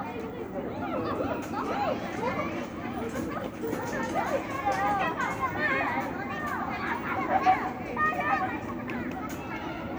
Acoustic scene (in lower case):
residential area